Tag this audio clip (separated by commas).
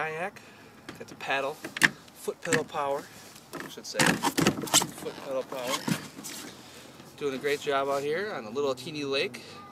Rowboat, Boat, Speech